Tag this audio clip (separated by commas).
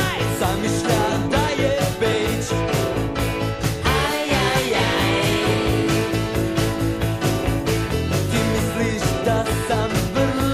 Music, Rock and roll